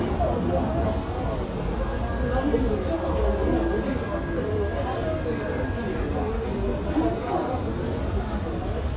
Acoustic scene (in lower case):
subway station